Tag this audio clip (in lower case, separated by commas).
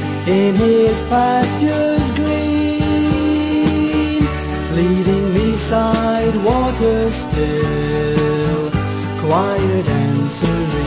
gospel music, music